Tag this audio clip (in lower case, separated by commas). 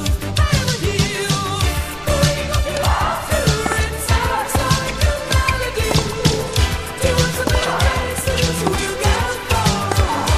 music